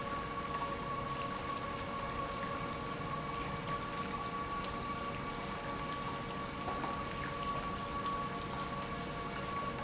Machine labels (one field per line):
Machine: pump